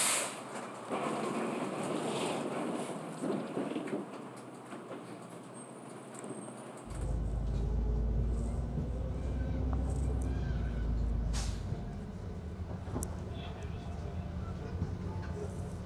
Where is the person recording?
on a bus